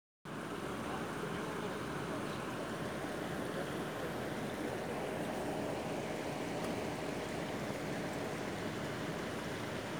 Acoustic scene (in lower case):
park